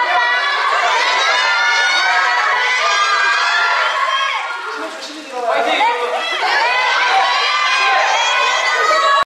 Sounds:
speech

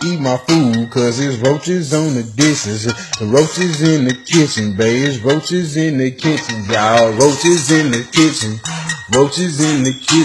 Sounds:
music, male singing

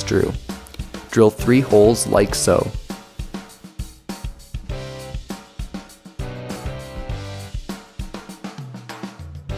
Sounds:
speech, music

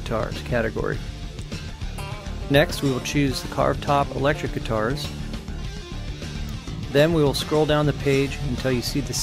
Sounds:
musical instrument, guitar, music, plucked string instrument, speech

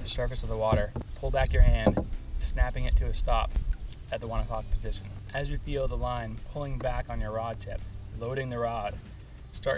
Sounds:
music, speech

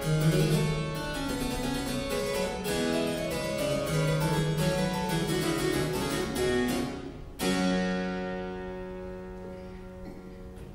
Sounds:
playing harpsichord, music, harpsichord, piano, musical instrument

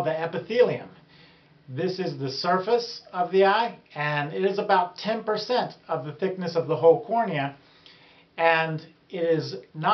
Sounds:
speech

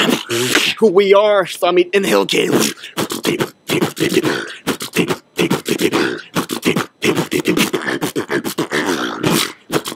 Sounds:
beatboxing

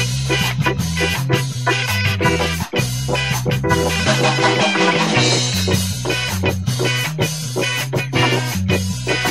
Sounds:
music, blues

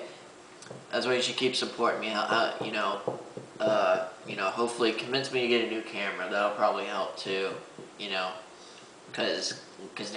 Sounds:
speech, inside a small room

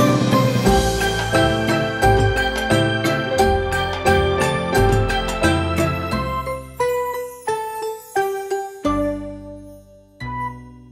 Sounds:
music, music for children

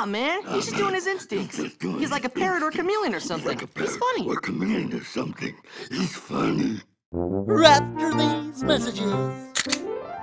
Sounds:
music, speech, inside a small room

